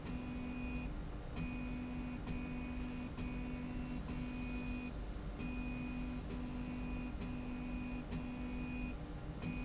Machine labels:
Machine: slide rail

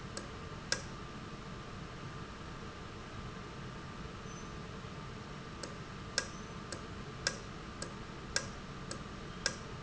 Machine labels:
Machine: valve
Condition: normal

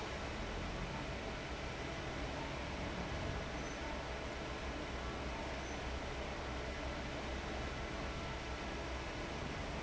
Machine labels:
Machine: fan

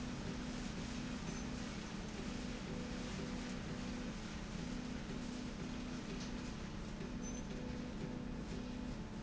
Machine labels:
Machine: slide rail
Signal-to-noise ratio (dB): 0 dB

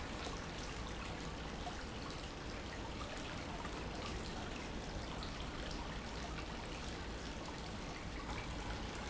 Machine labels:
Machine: pump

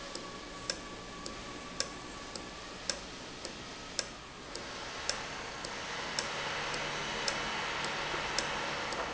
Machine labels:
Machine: valve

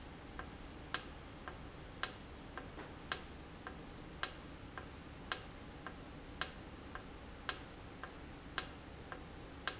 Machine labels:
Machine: valve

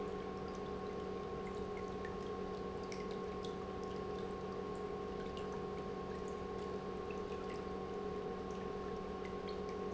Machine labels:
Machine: pump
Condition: normal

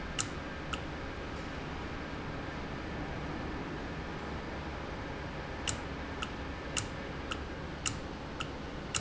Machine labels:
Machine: valve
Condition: normal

